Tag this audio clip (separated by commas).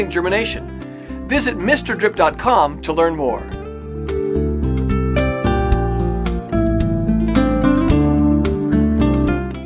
Music, Speech